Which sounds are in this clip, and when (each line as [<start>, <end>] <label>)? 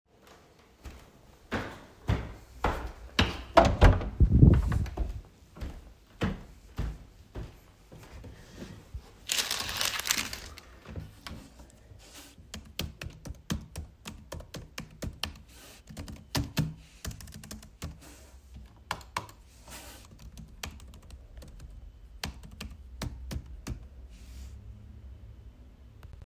[1.46, 3.41] footsteps
[3.51, 4.96] door
[4.83, 8.26] footsteps
[12.48, 23.83] keyboard typing